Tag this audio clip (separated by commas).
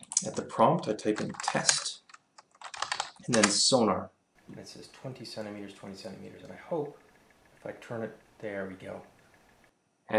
Typing, Speech